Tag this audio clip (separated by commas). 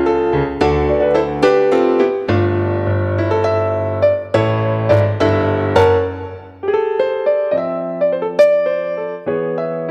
Electric piano, Music, Keyboard (musical), playing piano, Piano